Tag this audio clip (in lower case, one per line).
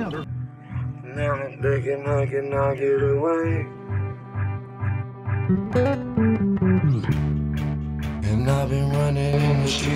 music